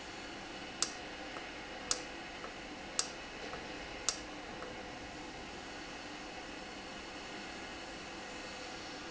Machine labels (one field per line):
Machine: valve